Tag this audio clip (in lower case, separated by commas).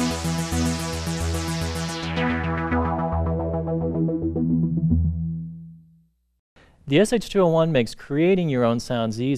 speech, music, sampler